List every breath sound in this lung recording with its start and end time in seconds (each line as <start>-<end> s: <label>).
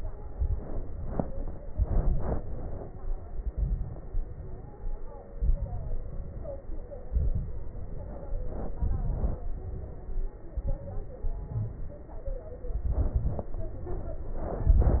0.28-0.85 s: inhalation
0.28-0.85 s: crackles
0.97-1.54 s: exhalation
1.71-2.39 s: inhalation
1.71-2.39 s: crackles
2.41-3.10 s: exhalation
3.50-4.08 s: inhalation
3.50-4.08 s: crackles
4.16-4.75 s: exhalation
4.16-4.75 s: crackles
5.36-6.06 s: inhalation
6.06-6.63 s: exhalation
6.06-6.63 s: crackles
7.09-7.56 s: inhalation
7.09-7.56 s: crackles
8.78-9.38 s: inhalation
8.78-9.38 s: crackles
9.42-10.41 s: exhalation
10.60-11.29 s: inhalation
10.60-11.29 s: crackles
11.27-11.95 s: exhalation
11.31-11.99 s: crackles
12.79-13.47 s: inhalation
12.79-13.47 s: crackles
14.57-15.00 s: exhalation
14.57-15.00 s: crackles